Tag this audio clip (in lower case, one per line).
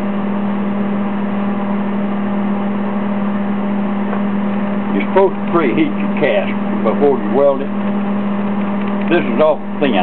speech